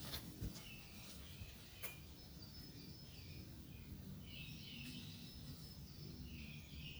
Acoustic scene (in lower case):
park